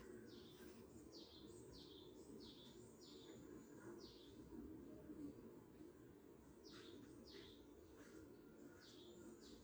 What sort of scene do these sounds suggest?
park